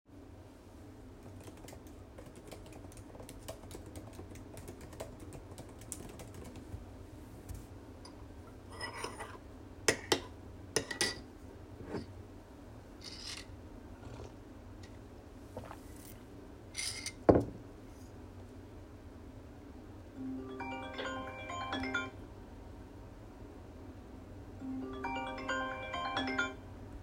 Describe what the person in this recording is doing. I was typing on my computer, then I stirred the tea in a mug with a spoon, lifted the mug, took a sip, placed it back on the desk. Finally, I received a phone notification.